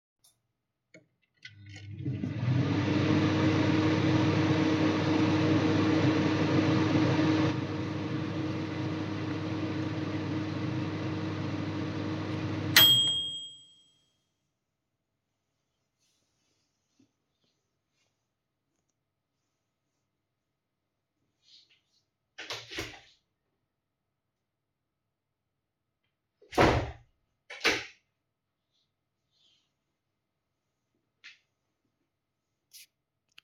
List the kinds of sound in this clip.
microwave, window